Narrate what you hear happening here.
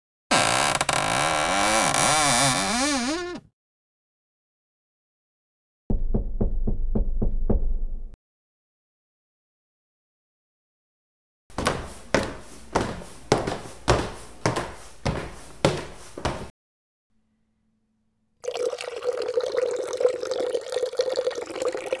Phone carried from bedroom to bathroom during evening routine. Wardrobe drawer opened, window opened in bathroom, tap turned on.